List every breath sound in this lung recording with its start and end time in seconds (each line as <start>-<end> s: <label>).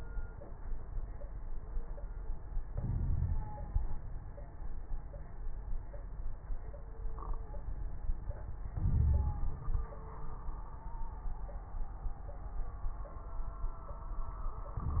2.68-3.44 s: inhalation
2.68-3.44 s: wheeze
8.77-9.91 s: inhalation
8.77-9.91 s: crackles